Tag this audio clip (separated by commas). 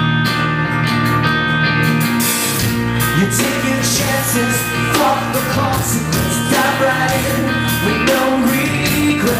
Music, Independent music, Rhythm and blues